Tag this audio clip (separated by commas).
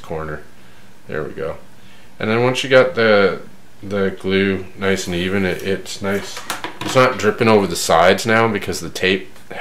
Speech, inside a small room